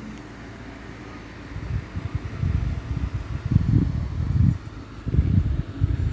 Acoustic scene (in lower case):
residential area